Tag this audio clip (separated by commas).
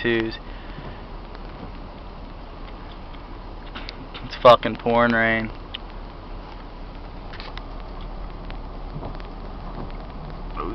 Speech